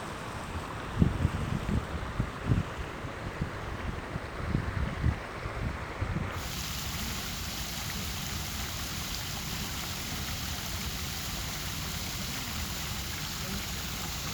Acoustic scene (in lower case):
park